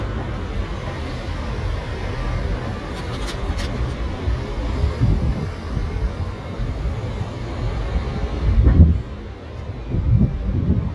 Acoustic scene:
street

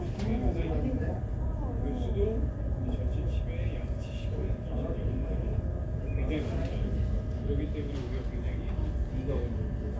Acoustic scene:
crowded indoor space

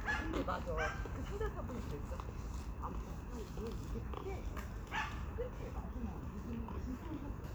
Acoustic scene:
park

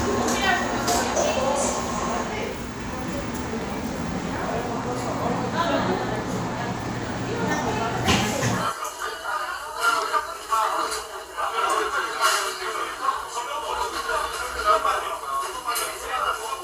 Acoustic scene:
crowded indoor space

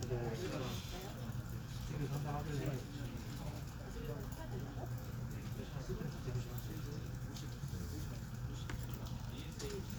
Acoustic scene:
crowded indoor space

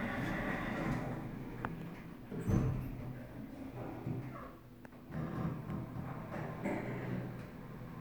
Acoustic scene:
elevator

